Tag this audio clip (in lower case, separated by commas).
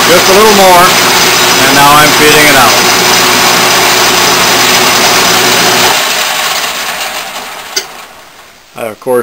tools, power tool, speech